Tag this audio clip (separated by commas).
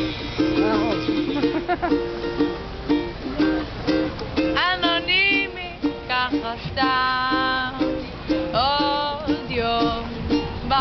Female singing, Music